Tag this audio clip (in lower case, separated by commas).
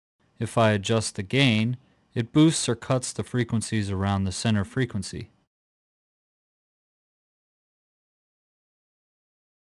speech